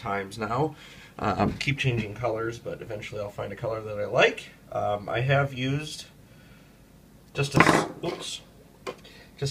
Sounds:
Speech

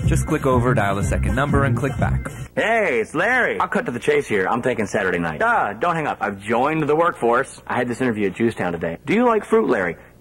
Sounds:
Speech, Music

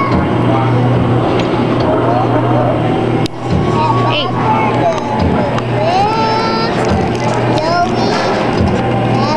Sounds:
Music, Car, Speech

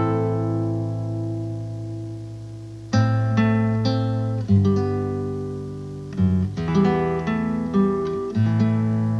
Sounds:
Acoustic guitar, Music

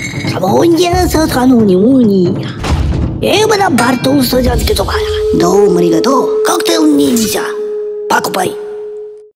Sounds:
Music, Speech

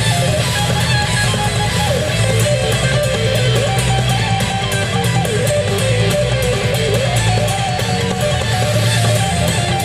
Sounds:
Music

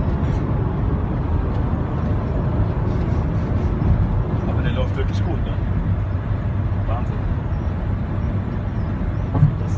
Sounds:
Speech

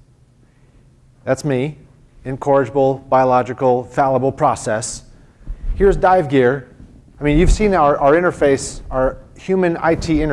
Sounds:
Speech

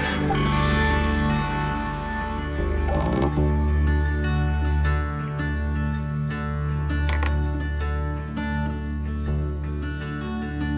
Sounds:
playing steel guitar

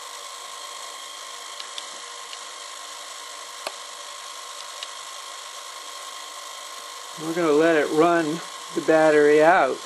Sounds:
Speech

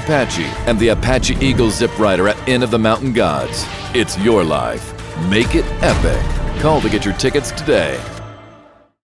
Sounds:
Speech, Music

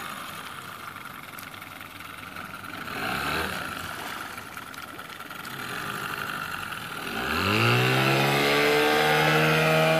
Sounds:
Vehicle, Motorboat

